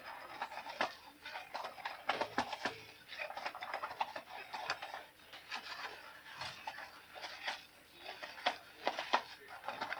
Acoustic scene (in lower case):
kitchen